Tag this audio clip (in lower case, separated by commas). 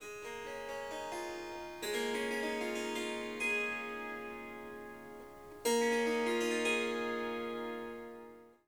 musical instrument, harp, music